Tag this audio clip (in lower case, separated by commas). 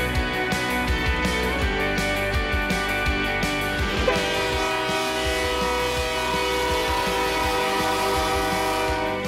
speech, train horn, train, vehicle, music